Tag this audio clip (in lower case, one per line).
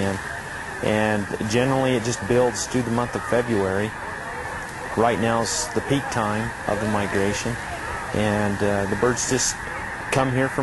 speech